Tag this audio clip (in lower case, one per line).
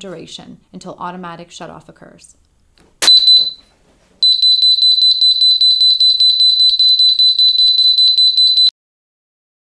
speech